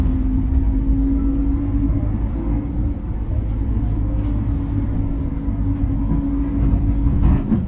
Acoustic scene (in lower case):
bus